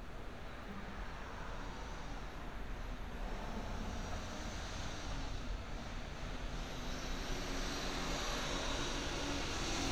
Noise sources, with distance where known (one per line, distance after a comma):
medium-sounding engine